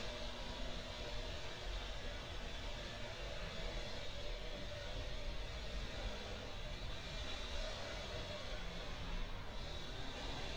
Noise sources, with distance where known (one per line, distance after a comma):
small or medium rotating saw, far